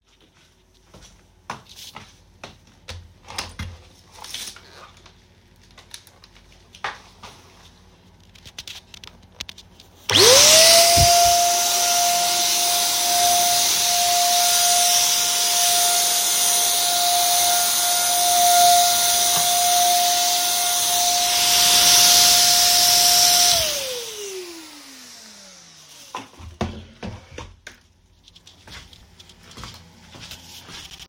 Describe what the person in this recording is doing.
I was vacuuming the floor while walking around the room.